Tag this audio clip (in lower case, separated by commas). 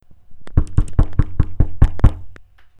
home sounds, door, knock